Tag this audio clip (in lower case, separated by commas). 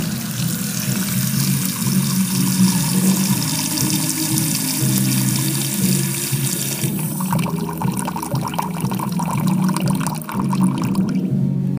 faucet, pour, liquid, dribble, home sounds, music